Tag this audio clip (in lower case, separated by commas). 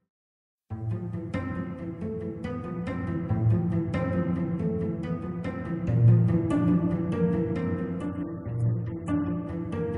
music